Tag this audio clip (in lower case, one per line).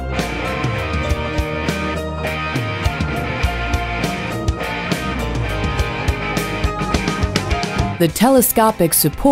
music
speech